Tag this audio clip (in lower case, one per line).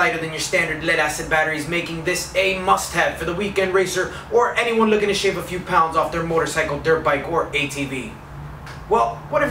speech